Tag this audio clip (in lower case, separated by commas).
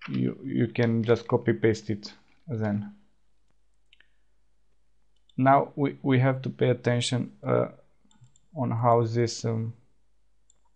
speech